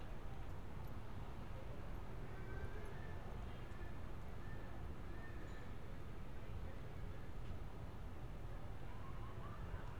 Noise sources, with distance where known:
background noise

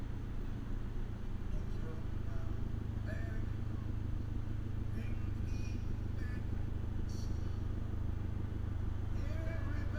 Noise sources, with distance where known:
engine of unclear size, near
music from an unclear source, near

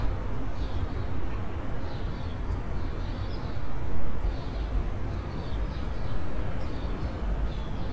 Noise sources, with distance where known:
large-sounding engine

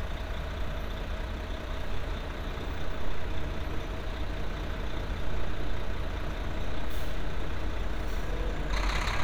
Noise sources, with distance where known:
large-sounding engine, near

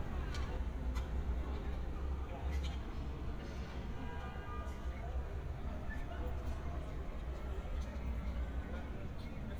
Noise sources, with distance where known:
car horn, far
person or small group talking

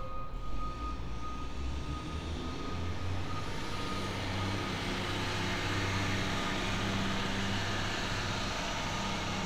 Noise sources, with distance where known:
large-sounding engine
reverse beeper

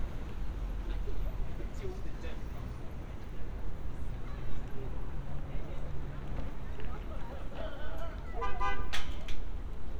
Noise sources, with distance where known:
car horn
person or small group talking

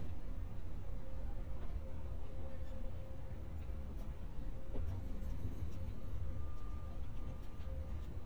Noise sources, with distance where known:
background noise

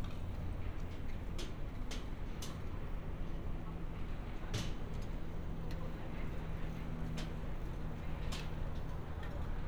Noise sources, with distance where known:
unidentified impact machinery, near
person or small group talking, far

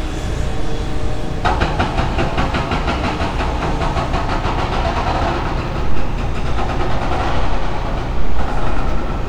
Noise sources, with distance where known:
hoe ram

